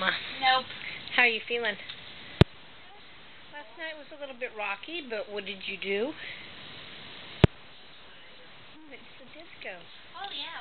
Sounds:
speech

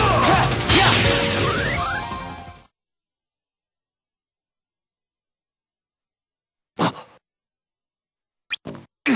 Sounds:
music

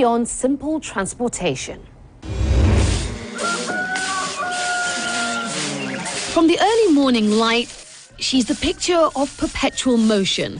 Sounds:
speech

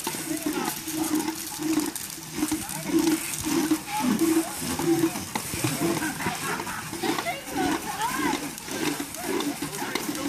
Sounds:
speech

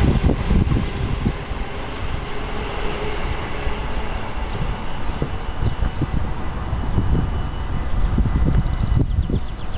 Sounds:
vehicle

